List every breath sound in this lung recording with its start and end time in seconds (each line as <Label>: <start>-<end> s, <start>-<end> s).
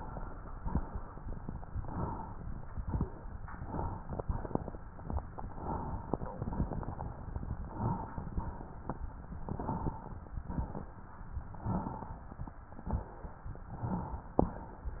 Inhalation: 1.76-2.35 s, 3.61-4.20 s, 5.50-6.17 s, 7.50-8.16 s, 9.30-9.96 s, 11.61-12.28 s, 13.72-14.38 s
Exhalation: 0.53-1.20 s, 2.75-3.34 s, 4.25-4.84 s, 6.34-7.00 s, 8.18-8.84 s, 10.32-10.99 s, 12.87-13.53 s